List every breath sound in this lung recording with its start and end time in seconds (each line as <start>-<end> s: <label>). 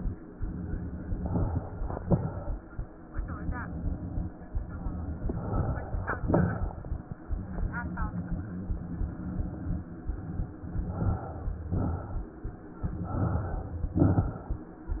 1.14-1.97 s: inhalation
1.99-2.82 s: exhalation
5.21-6.23 s: inhalation
6.22-7.23 s: exhalation
10.76-11.65 s: inhalation
11.65-12.43 s: exhalation
12.96-13.75 s: inhalation
13.89-14.68 s: exhalation
13.89-14.68 s: crackles